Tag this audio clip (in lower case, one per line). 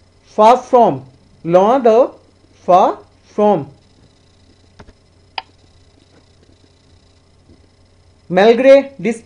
speech